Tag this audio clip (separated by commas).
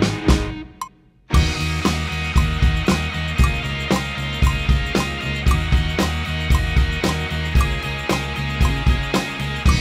Drum kit, Drum, Music, Musical instrument